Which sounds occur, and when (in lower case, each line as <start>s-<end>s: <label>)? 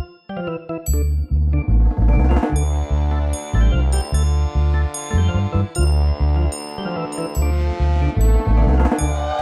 0.0s-9.4s: music